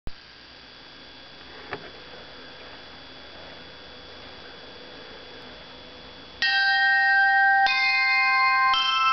Bells chiming and increasing pitch